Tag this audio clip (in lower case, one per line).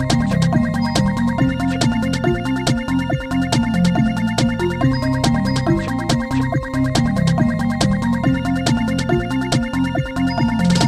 music